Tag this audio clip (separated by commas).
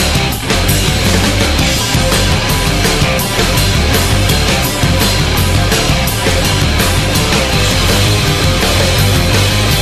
Music, Rhythm and blues